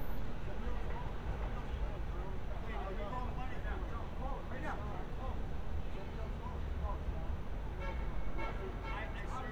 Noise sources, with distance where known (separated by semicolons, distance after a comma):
car horn, far; person or small group talking, near